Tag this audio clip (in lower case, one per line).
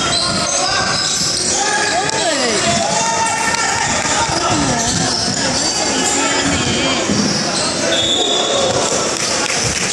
inside a large room or hall
basketball bounce
speech